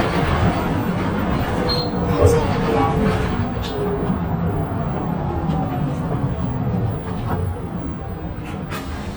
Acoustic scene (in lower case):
bus